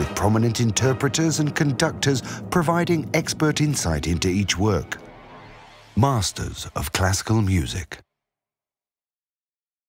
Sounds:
speech, music, classical music

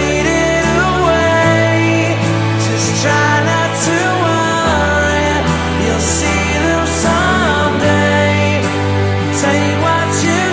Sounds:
music

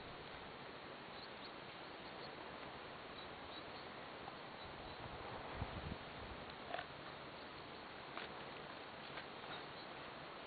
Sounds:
dog, pets, animal

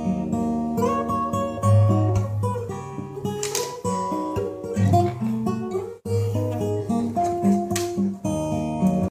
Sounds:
music, acoustic guitar, guitar, plucked string instrument, musical instrument, strum

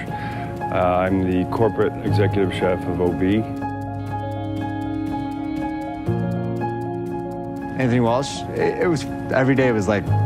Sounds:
music, speech

